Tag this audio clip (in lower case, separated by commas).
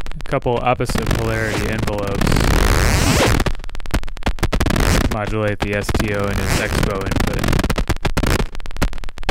speech, cacophony